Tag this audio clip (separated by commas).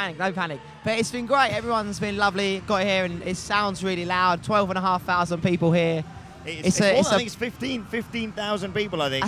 Speech